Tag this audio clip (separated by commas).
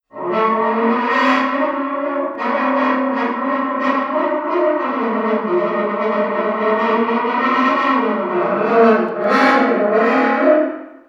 Music, Musical instrument, Brass instrument